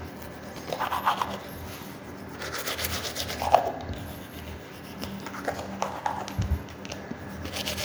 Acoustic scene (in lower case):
restroom